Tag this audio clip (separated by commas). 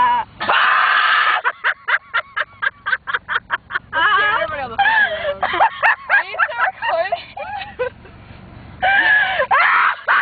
outside, urban or man-made, Car, Vehicle, Speech